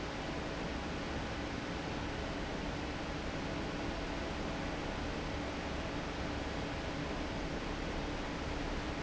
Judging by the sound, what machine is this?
fan